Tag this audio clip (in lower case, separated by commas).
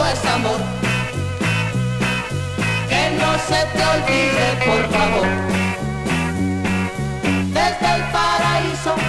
jingle (music), music